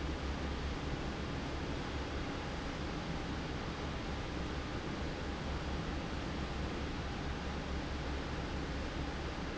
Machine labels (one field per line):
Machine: fan